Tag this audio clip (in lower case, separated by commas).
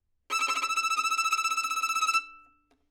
musical instrument, bowed string instrument, music